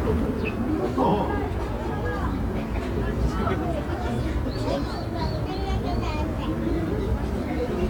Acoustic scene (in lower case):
residential area